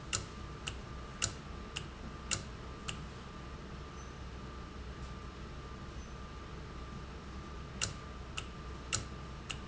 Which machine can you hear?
valve